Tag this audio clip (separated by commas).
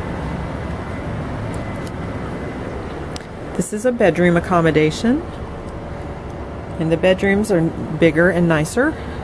Speech